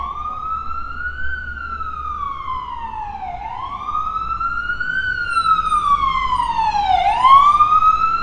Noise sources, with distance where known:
siren, near

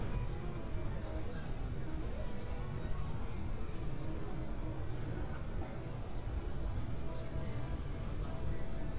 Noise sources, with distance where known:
music from a fixed source

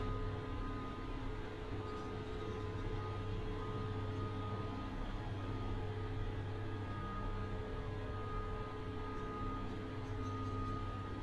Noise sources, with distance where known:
unidentified alert signal

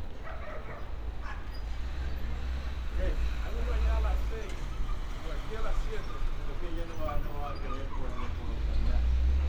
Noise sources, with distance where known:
person or small group talking, far
dog barking or whining, far

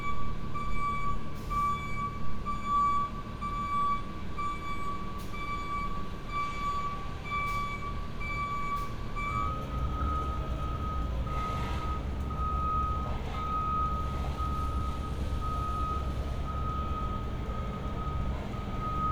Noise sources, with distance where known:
reverse beeper

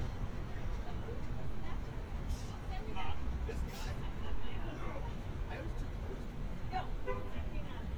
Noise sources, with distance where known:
car horn, far
person or small group talking, near

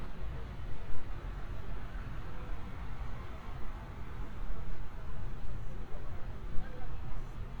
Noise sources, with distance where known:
unidentified human voice, far

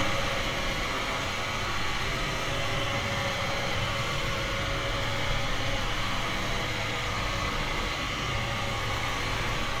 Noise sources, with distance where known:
large-sounding engine, near

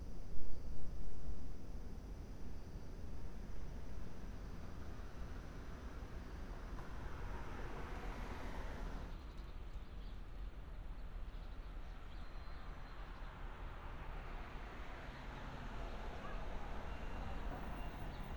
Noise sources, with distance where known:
medium-sounding engine

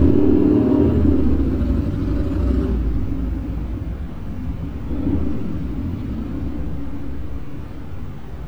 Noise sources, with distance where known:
medium-sounding engine, near

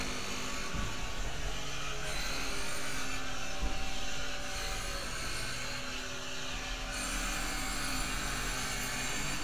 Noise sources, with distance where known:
unidentified impact machinery, near

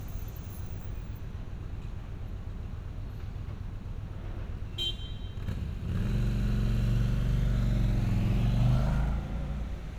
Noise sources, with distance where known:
medium-sounding engine, near
car horn, near

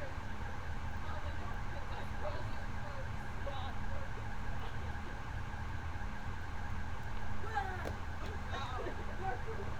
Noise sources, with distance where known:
person or small group talking, near

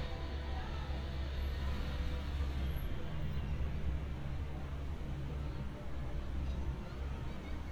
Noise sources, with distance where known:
person or small group talking, far

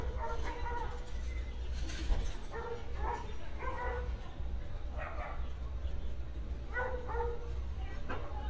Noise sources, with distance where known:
dog barking or whining, near

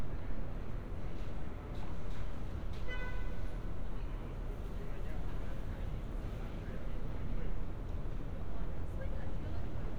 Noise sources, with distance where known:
car horn, far

